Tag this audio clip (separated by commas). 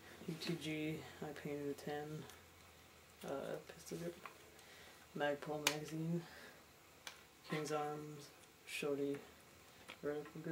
Speech